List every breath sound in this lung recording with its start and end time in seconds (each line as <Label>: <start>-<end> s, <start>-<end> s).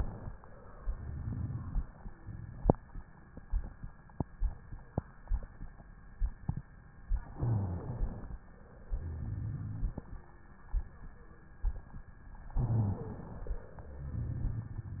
Inhalation: 7.31-8.31 s, 12.53-13.60 s
Exhalation: 8.92-10.04 s, 13.82-15.00 s
Wheeze: 12.96-13.19 s
Rhonchi: 7.31-8.31 s, 8.92-10.04 s, 12.53-12.97 s, 13.82-15.00 s